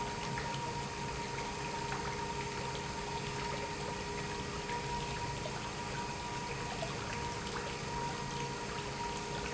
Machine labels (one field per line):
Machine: pump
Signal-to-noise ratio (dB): -6 dB